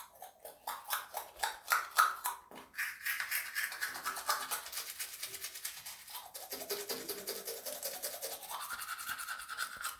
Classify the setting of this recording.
restroom